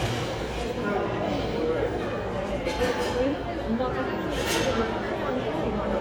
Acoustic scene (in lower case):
crowded indoor space